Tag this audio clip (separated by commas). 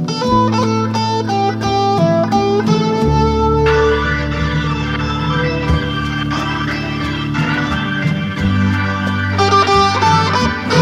Steel guitar, Music, Plucked string instrument